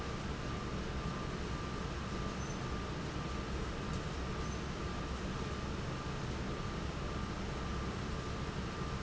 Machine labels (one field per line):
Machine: fan